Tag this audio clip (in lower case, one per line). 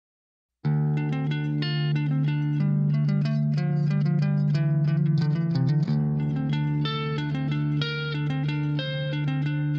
music
bass guitar